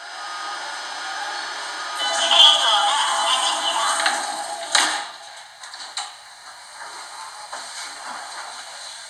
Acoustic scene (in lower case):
subway train